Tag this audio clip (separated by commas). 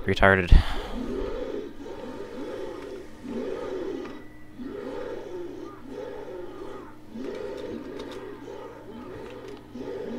inside a small room, Speech